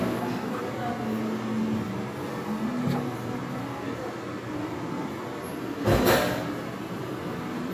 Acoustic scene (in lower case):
crowded indoor space